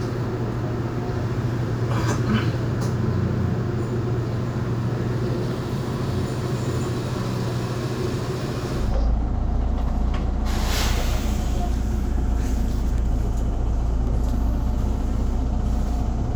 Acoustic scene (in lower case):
bus